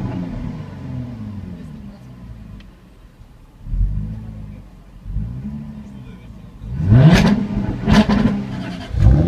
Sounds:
Car, Vehicle, revving

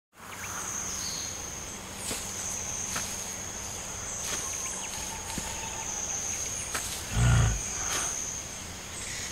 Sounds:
Animal, outside, rural or natural

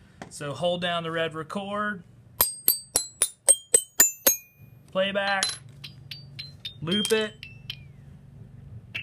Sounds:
playing glockenspiel

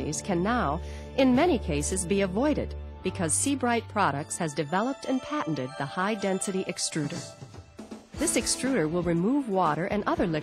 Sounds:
Music, Speech

